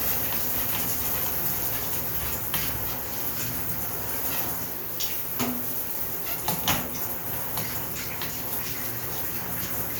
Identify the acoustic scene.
restroom